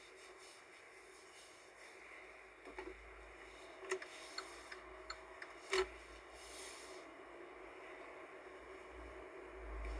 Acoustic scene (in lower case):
car